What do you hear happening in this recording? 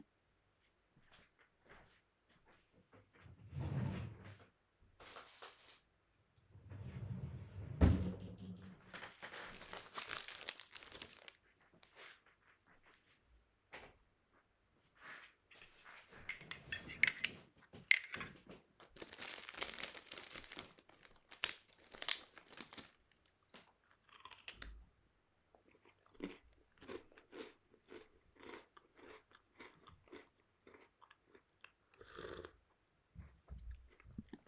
I opened a drawer, got a packet of biscuits out, closed the drawer, took my coffee cup and sat on my bed. Then I opened the packet and started eating biscuits and drinking coffee.